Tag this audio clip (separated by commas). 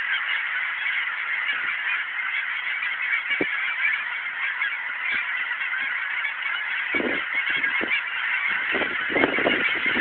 goose honking, Goose, Fowl, Honk